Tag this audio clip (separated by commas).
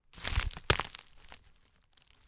Crackle